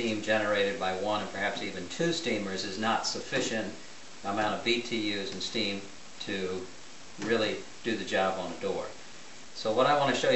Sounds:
speech

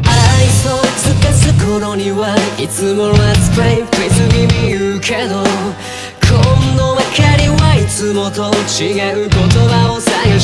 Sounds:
music

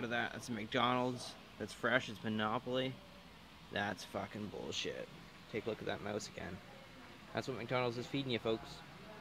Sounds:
speech

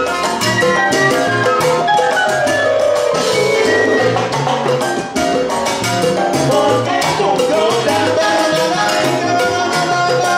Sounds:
steelpan
music

